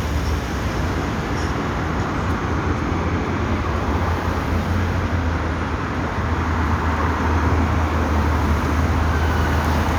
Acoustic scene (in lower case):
street